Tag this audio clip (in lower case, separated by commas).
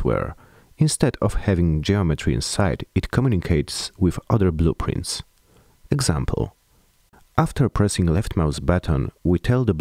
speech